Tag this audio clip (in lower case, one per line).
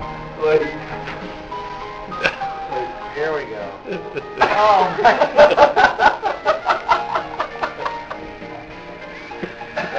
speech
inside a large room or hall
music